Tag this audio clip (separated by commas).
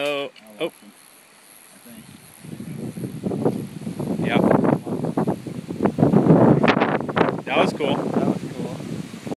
Speech